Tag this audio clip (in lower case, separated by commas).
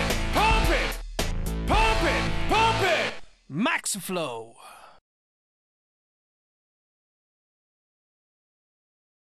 speech, music